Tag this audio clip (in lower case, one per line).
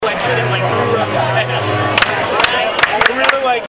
clapping
hands